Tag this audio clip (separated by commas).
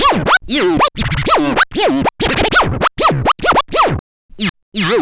Scratching (performance technique), Music, Musical instrument